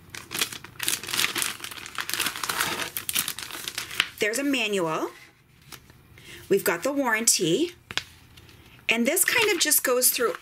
Crumpling of paper followed by a female voice talking